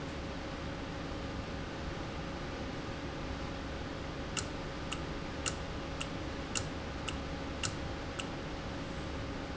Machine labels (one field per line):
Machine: valve